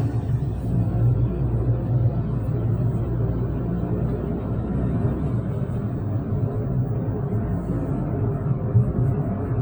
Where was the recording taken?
in a car